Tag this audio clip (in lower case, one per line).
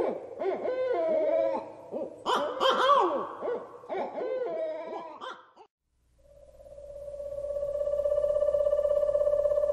owl hooting